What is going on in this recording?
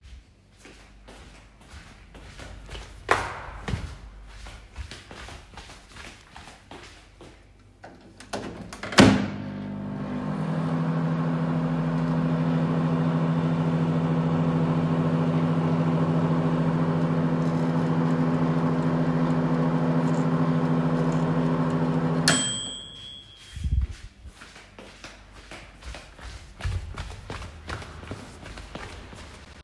The device is carried from the hallway into the kitchen. Footsteps are heard first as the person walks in. A microwave is then started, runs for a moment, and ends with the typical completion sound and then walks back to the hallway